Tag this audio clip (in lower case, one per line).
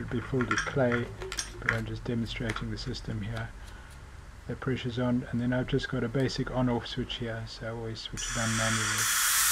speech